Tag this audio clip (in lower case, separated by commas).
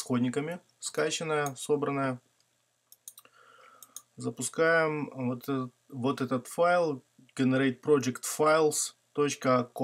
speech